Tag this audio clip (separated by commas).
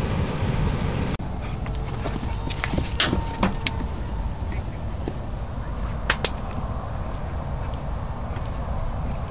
Speech